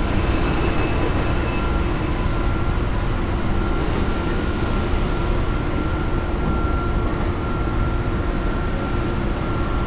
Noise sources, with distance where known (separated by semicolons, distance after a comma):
reverse beeper, far